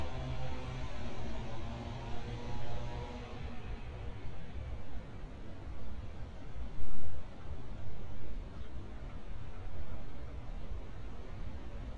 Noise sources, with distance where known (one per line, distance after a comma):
small-sounding engine